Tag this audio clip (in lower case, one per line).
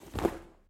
walk